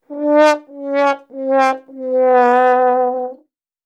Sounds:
Brass instrument, Music, Musical instrument

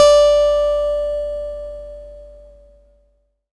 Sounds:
Musical instrument, Acoustic guitar, Guitar, Plucked string instrument, Music

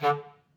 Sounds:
Musical instrument, Music, Wind instrument

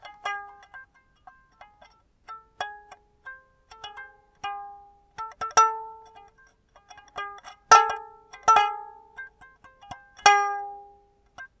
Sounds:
Musical instrument, Plucked string instrument, Music

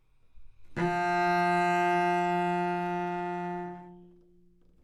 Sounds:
Bowed string instrument, Musical instrument, Music

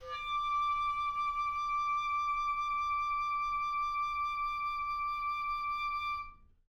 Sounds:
Musical instrument, Wind instrument, Music

